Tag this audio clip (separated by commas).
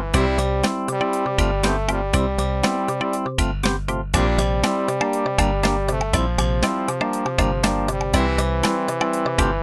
Music